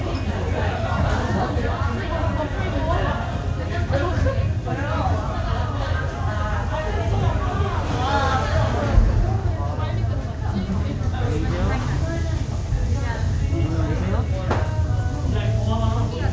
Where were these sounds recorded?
in a restaurant